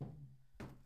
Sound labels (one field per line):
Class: furniture moving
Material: wooden